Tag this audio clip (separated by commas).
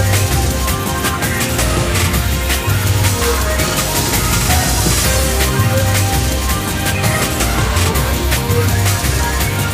Music